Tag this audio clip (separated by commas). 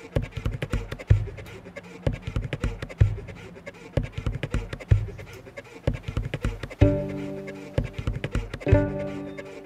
Music